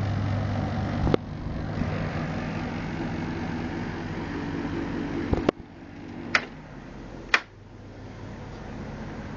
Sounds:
air conditioning

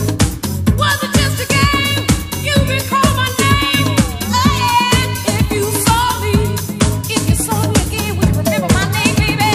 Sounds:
music, disco

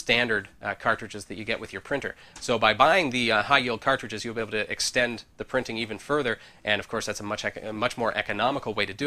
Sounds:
speech

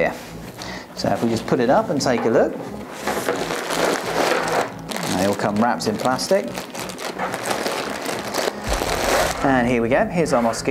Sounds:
speech, music

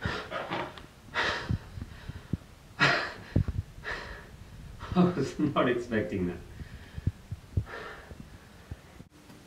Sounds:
speech

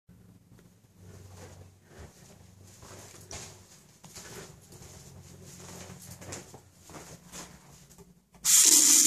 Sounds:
water, water tap

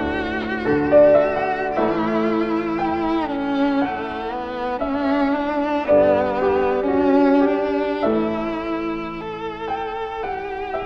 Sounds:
musical instrument, violin, music

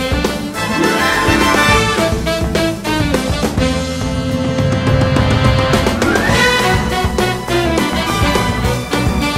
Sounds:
music

